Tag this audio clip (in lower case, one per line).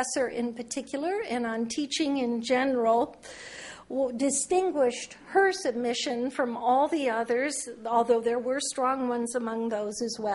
woman speaking
speech